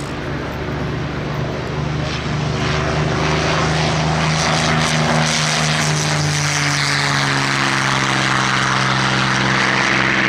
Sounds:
airplane flyby

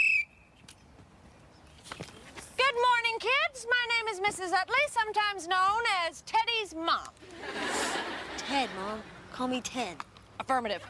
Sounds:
Speech

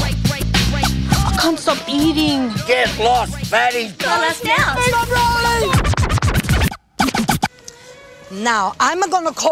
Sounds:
Music, Speech

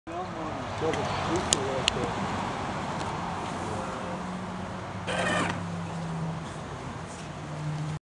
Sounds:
Speech

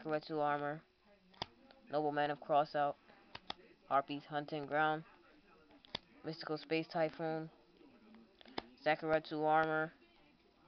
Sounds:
Speech

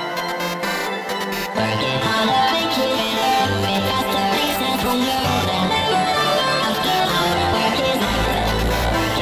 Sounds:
Electronic music, Dubstep, Music

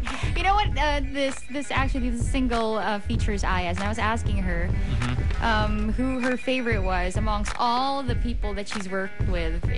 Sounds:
Music, Speech

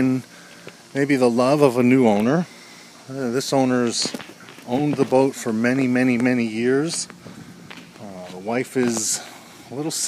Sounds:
Boat, Speech

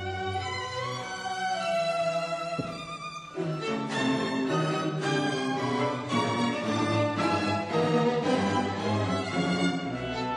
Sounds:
Musical instrument, Violin, Music

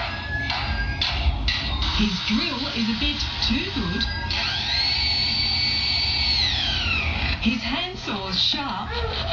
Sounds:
Speech

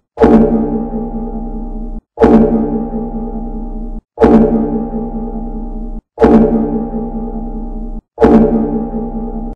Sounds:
Music

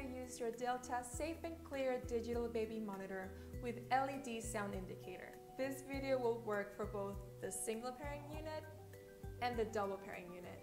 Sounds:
Music, Speech

